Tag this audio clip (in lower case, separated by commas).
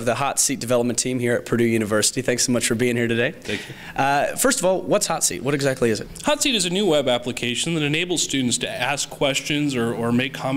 speech